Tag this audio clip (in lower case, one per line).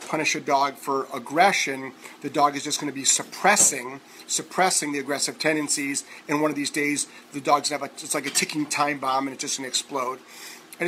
speech